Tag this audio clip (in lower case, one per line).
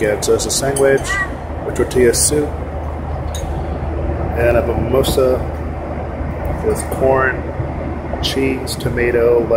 speech